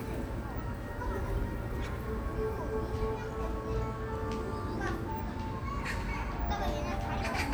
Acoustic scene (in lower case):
park